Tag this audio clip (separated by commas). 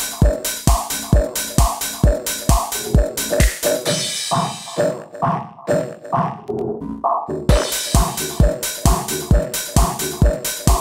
Drum machine, Music